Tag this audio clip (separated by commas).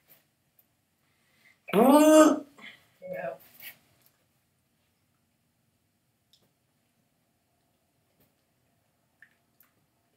Speech, inside a small room